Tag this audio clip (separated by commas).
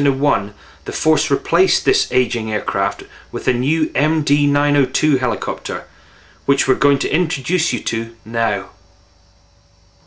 Speech